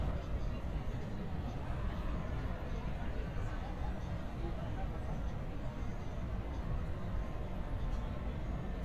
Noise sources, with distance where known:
person or small group talking, far

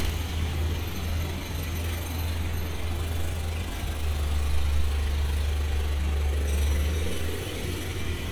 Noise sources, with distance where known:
unidentified impact machinery

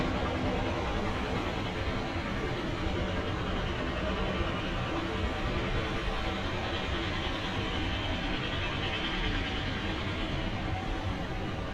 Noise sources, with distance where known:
jackhammer

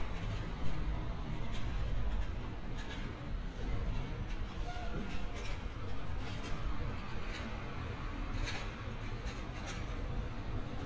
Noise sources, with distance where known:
large-sounding engine, far

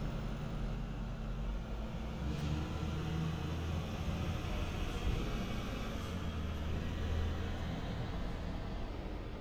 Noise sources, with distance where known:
engine of unclear size

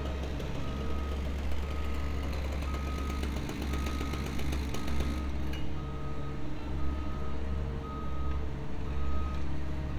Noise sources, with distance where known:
reverse beeper

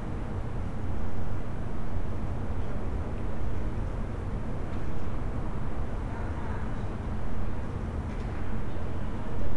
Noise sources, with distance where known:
unidentified human voice, far

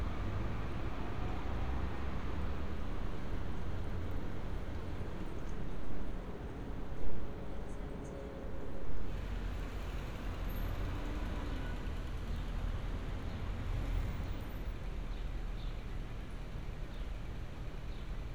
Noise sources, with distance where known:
engine of unclear size

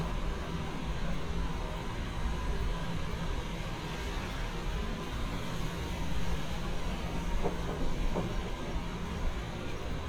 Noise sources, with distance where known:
large-sounding engine, near

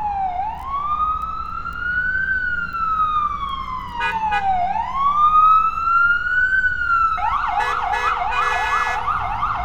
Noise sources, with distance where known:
car horn, near; siren, near

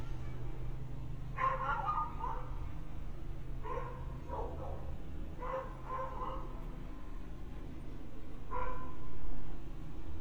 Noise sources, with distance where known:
dog barking or whining, near

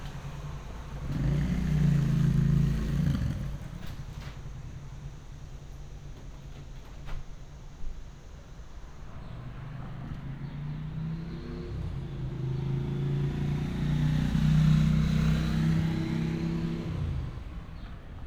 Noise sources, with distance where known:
medium-sounding engine, near

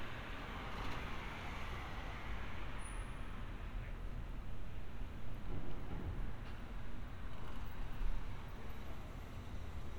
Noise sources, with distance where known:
medium-sounding engine, far

